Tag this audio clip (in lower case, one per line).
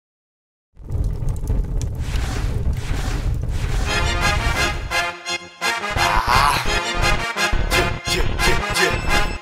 rapping
music